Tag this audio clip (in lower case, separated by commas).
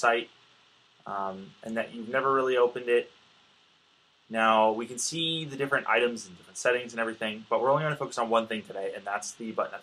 speech